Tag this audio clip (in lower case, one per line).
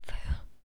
human voice
whispering